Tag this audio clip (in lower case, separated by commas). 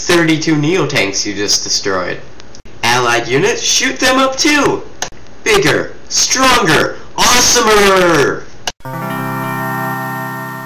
speech, music